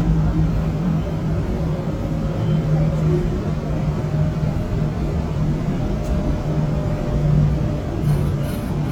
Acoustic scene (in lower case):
subway train